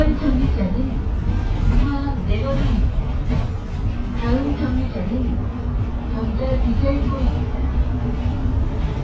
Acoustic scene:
bus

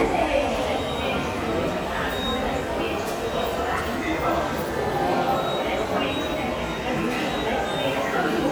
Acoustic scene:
subway station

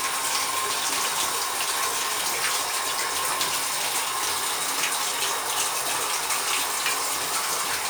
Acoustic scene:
restroom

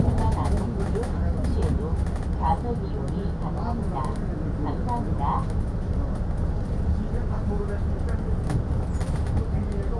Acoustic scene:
bus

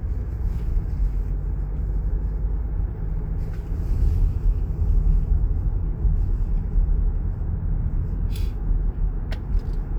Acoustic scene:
car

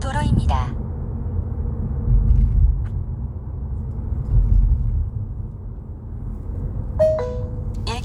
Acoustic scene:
car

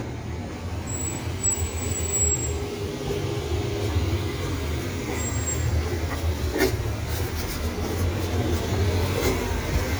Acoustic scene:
residential area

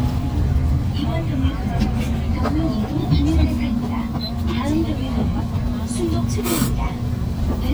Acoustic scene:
bus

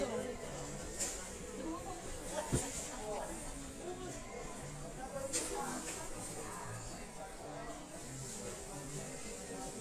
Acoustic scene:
crowded indoor space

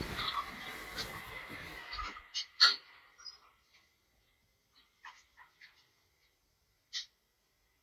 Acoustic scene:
elevator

